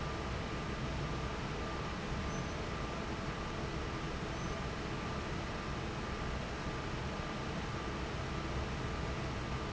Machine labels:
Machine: fan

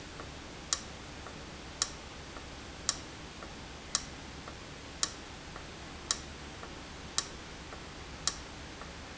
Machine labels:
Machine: valve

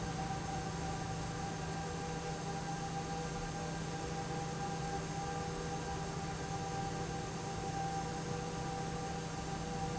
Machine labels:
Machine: fan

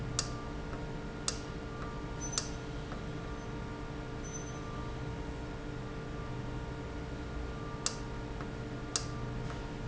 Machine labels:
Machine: valve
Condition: normal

